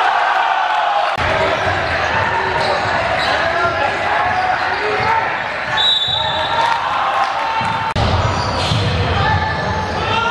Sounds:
basketball bounce

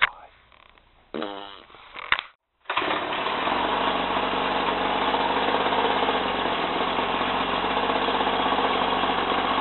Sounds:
engine starting, idling

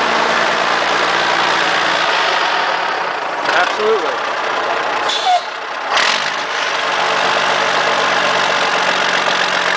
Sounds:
outside, rural or natural, engine starting, vehicle, truck, speech

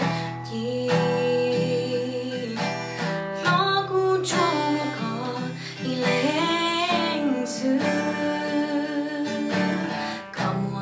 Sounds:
music, musical instrument, guitar, strum

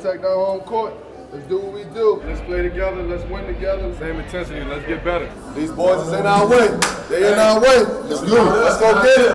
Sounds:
speech

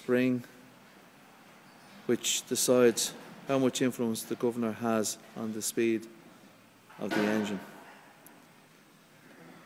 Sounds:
speech

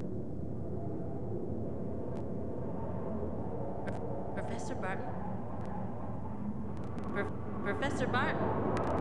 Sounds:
speech

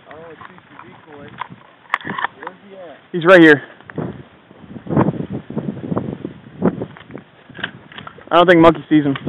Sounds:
speech

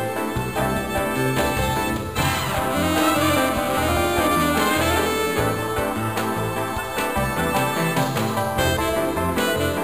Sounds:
music, soundtrack music

